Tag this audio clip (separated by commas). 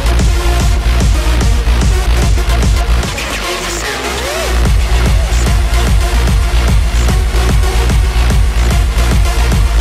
Exciting music, Music